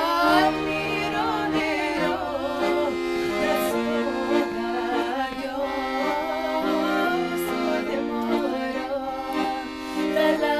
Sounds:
music, female singing

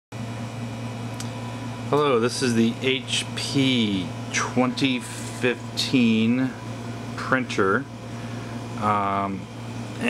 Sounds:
speech, inside a small room

